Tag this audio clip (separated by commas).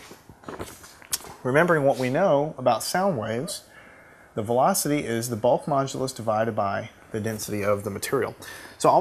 Speech